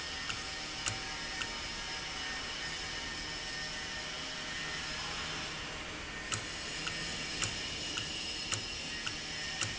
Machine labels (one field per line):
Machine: valve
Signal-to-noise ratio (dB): -6 dB